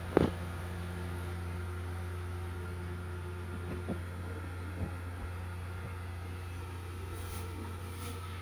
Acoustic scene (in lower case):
restroom